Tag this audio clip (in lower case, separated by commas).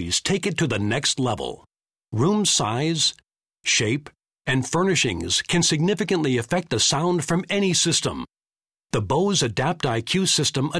speech